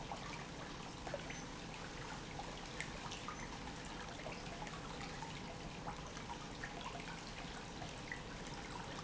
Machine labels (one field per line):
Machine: pump